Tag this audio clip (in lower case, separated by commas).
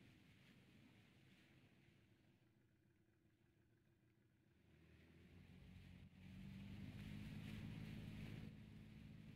vehicle, speedboat